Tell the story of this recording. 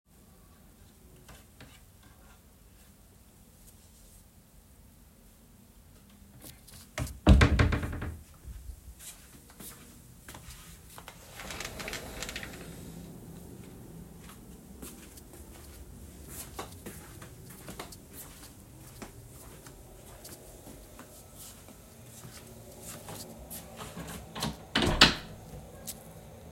I carried my phone while opening the wardrobe to hang up a jacket. I then walked across the bedroom to the window and opened it. After that I walked to the door, opened it, and left the room closing the door behind me.